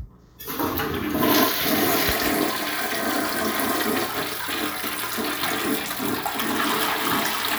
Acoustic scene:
restroom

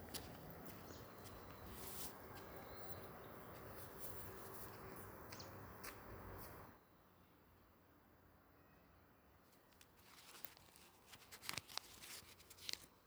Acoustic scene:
park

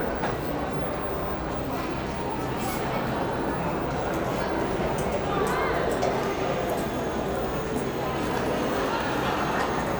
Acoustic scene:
cafe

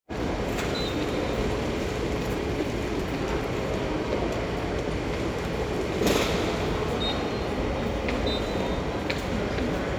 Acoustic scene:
subway station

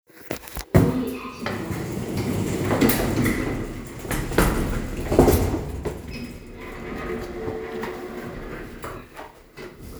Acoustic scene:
elevator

